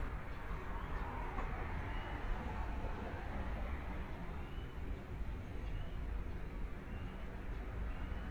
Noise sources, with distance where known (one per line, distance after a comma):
medium-sounding engine, far